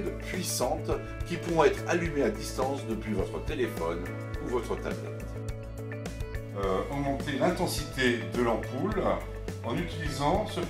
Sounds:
Music, Speech

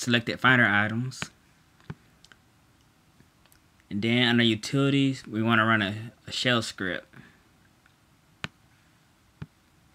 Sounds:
Speech

